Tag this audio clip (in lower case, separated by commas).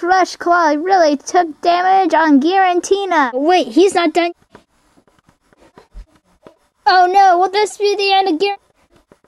inside a small room, speech